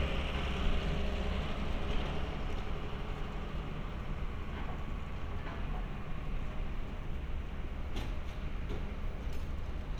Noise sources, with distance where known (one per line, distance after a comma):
large-sounding engine